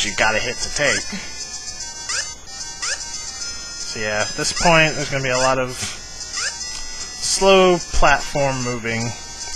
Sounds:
music
speech

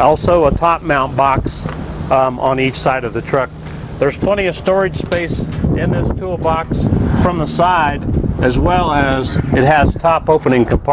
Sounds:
speech

